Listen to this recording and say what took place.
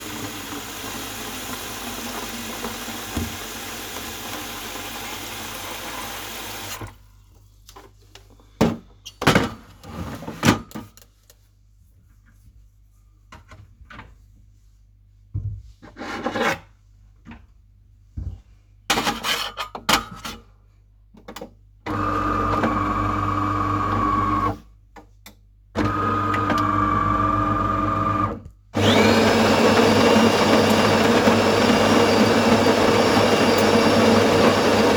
I filled the watertank with tap water from the faucette, then inserted the watertank into the coffee machine and started to brew one cup with grinding the beans